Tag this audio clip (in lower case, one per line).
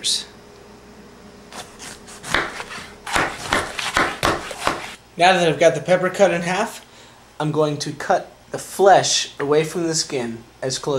speech